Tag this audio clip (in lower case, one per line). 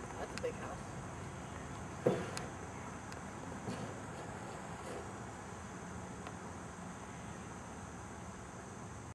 speech